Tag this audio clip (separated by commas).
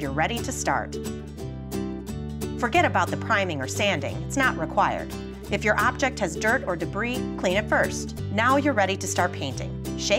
Speech, Music